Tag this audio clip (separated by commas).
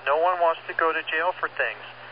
Human voice, Speech